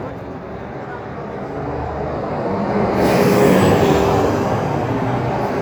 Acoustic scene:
street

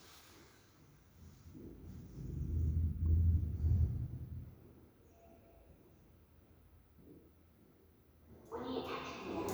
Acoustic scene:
elevator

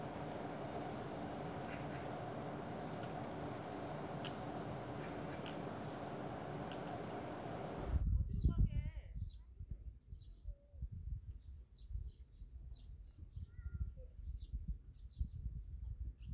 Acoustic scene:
park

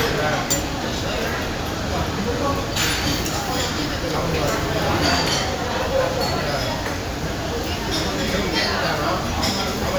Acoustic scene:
crowded indoor space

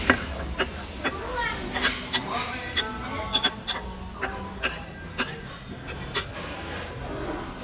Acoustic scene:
restaurant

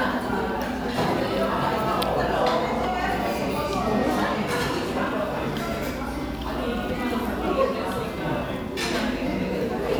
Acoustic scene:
crowded indoor space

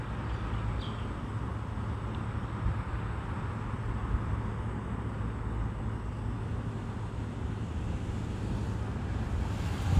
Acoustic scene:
residential area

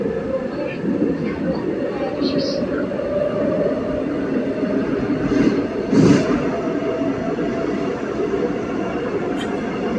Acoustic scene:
subway train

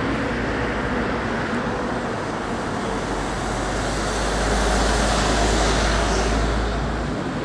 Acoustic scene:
street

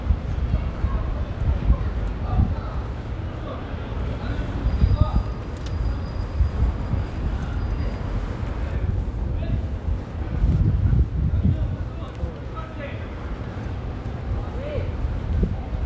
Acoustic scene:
residential area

